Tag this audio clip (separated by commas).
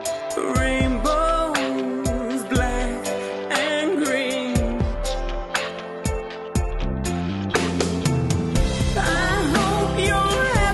Music